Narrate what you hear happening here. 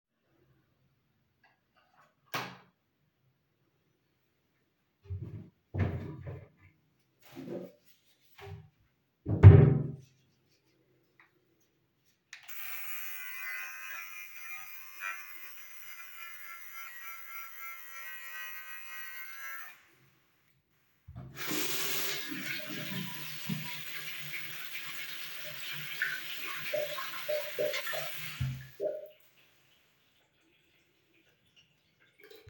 I turned the light on then i opened the closet in the bathroom, took my razor and used it, then i washed my hand.